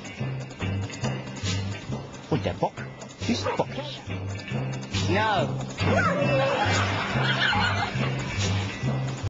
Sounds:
Music, Speech

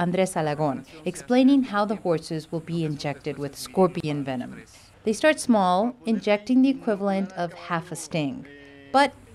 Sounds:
Speech

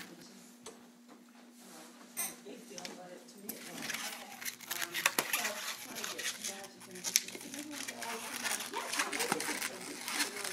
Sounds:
Speech

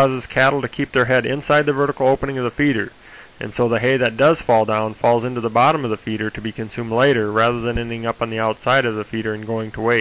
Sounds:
Speech

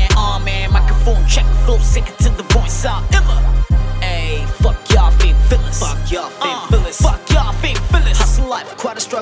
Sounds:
Music

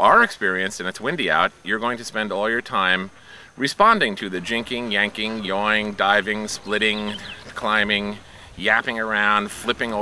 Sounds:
Speech

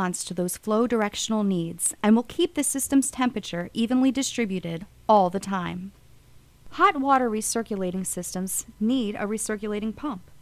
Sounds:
Narration

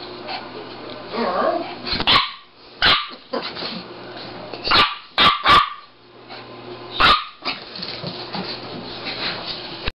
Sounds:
Speech

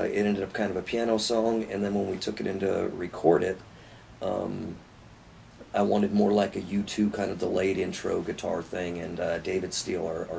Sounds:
Speech

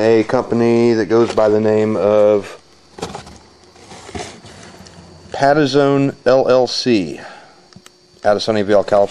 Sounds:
Speech, inside a small room

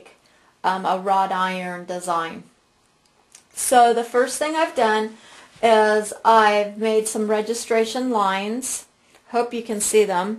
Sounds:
Speech

